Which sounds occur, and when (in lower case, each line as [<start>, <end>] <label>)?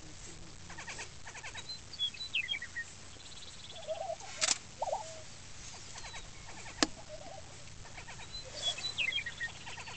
[0.00, 9.95] background noise
[4.37, 4.59] generic impact sounds
[6.78, 6.91] tap
[7.79, 9.95] bird vocalization
[8.46, 8.80] surface contact